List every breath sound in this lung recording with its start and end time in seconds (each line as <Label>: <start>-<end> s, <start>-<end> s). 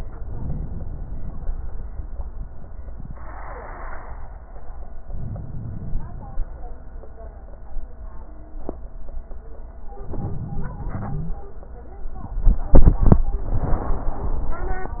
Inhalation: 5.05-6.46 s, 9.99-11.41 s
Wheeze: 10.91-11.41 s